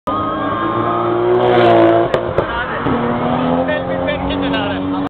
A car speeds past as a man speaks